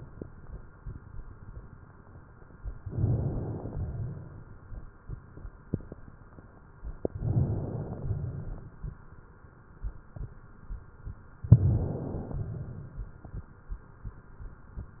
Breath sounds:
2.87-3.72 s: inhalation
2.89-3.62 s: crackles
3.72-4.69 s: exhalation
7.08-8.04 s: inhalation
7.10-7.84 s: crackles
8.04-8.96 s: exhalation
11.52-12.43 s: inhalation
11.52-12.43 s: crackles
12.43-13.17 s: exhalation

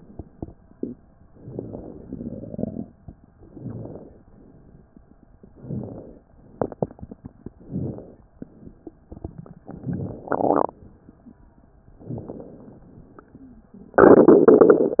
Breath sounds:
1.33-2.03 s: inhalation
3.49-4.20 s: inhalation
5.52-6.22 s: inhalation
7.55-8.26 s: inhalation
9.66-10.36 s: inhalation
12.07-12.85 s: inhalation

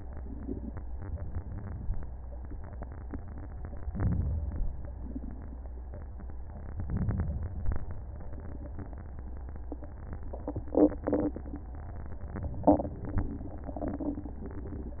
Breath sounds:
3.89-4.86 s: inhalation
6.80-7.69 s: inhalation

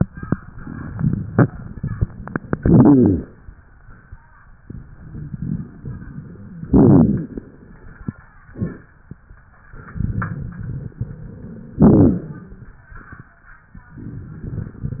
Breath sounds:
2.60-3.23 s: inhalation
2.60-3.23 s: rhonchi
6.66-7.29 s: rhonchi
6.68-7.31 s: inhalation
11.82-12.45 s: inhalation
11.82-12.45 s: rhonchi

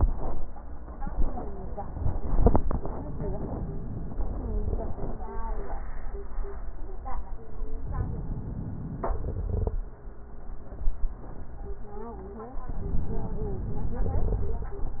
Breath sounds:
7.75-9.78 s: inhalation
9.13-9.78 s: crackles
12.69-14.70 s: inhalation
14.10-14.70 s: crackles

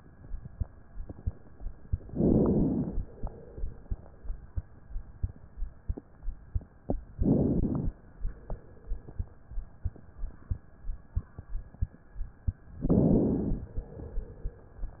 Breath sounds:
2.09-3.00 s: inhalation
7.17-7.91 s: inhalation
12.85-13.72 s: inhalation

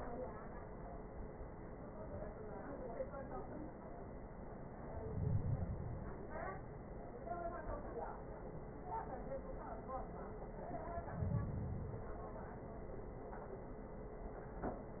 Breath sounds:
4.72-6.22 s: inhalation
10.78-12.28 s: inhalation

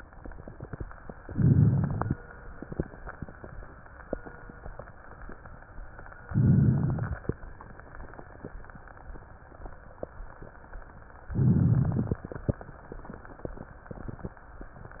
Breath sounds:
1.21-2.15 s: inhalation
1.21-2.15 s: crackles
6.31-7.26 s: inhalation
6.31-7.26 s: crackles
11.33-12.26 s: inhalation
11.33-12.26 s: crackles

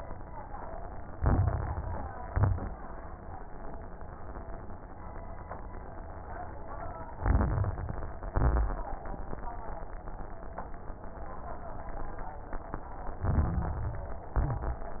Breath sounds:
1.08-2.22 s: inhalation
1.08-2.22 s: crackles
2.24-2.83 s: exhalation
2.24-2.83 s: crackles
7.12-8.26 s: inhalation
7.12-8.26 s: crackles
8.32-8.91 s: exhalation
13.22-14.36 s: inhalation
13.22-14.36 s: crackles
14.35-15.00 s: exhalation
14.40-15.00 s: crackles

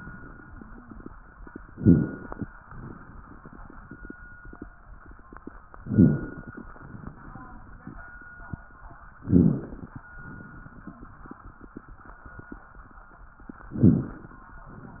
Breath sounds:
1.67-2.45 s: inhalation
1.73-2.17 s: crackles
5.83-6.40 s: crackles
5.84-6.62 s: inhalation
9.22-9.83 s: crackles
9.22-10.00 s: inhalation
13.72-14.33 s: inhalation
13.72-14.33 s: crackles

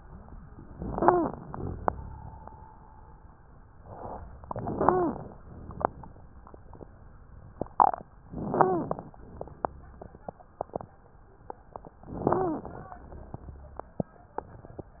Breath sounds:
0.61-1.44 s: inhalation
0.89-1.33 s: wheeze
1.48-2.54 s: exhalation
1.48-2.54 s: rhonchi
4.46-5.33 s: inhalation
4.74-5.18 s: wheeze
5.43-6.11 s: exhalation
5.43-6.11 s: rhonchi
8.27-9.11 s: inhalation
8.54-8.98 s: wheeze
9.22-10.29 s: exhalation
9.22-10.29 s: rhonchi
12.07-12.90 s: inhalation
12.26-12.73 s: wheeze
12.96-14.02 s: exhalation
12.96-14.02 s: rhonchi

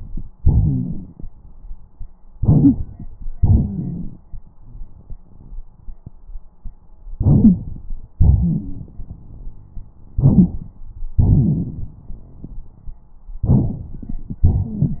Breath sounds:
0.40-1.24 s: exhalation
0.40-1.24 s: rhonchi
2.35-3.08 s: inhalation
2.39-2.76 s: wheeze
3.36-4.20 s: exhalation
3.38-4.05 s: wheeze
7.18-7.86 s: inhalation
7.43-7.56 s: wheeze
8.19-9.95 s: exhalation
8.39-8.83 s: wheeze
10.15-10.48 s: wheeze
10.15-10.75 s: inhalation
11.18-13.04 s: exhalation
13.45-14.44 s: inhalation
13.45-14.44 s: crackles

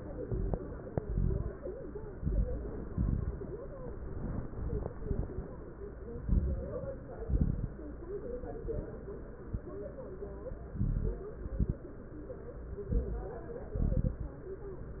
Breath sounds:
0.19-0.62 s: inhalation
0.19-0.62 s: crackles
0.99-1.55 s: exhalation
0.99-1.55 s: crackles
2.15-2.71 s: inhalation
2.15-2.71 s: crackles
2.87-3.44 s: exhalation
2.87-3.44 s: crackles
6.14-6.89 s: inhalation
6.14-6.89 s: crackles
7.22-7.87 s: exhalation
7.22-7.87 s: crackles
10.72-11.27 s: inhalation
10.72-11.27 s: crackles
11.44-11.84 s: exhalation
11.44-11.84 s: crackles
12.92-13.41 s: inhalation
12.92-13.41 s: crackles
13.78-14.40 s: exhalation
13.78-14.40 s: crackles

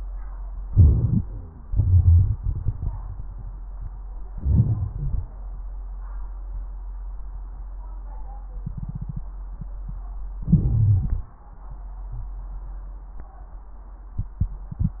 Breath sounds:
0.52-1.69 s: inhalation
0.64-1.69 s: crackles
1.21-1.69 s: wheeze
1.65-2.94 s: exhalation
1.70-2.93 s: crackles
4.29-5.33 s: inhalation
4.29-5.33 s: crackles
10.39-11.44 s: inhalation
10.39-11.44 s: crackles

